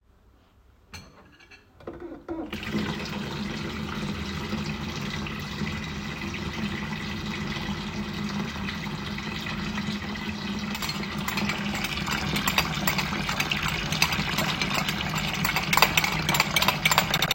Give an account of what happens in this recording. water is running in the sink, at the same time washing dishes